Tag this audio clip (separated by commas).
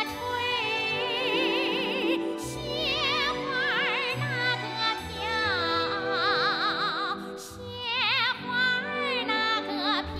Music